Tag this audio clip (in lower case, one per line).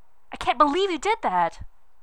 speech
human voice
woman speaking